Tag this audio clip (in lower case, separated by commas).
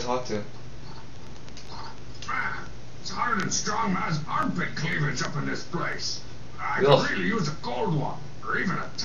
speech, outside, rural or natural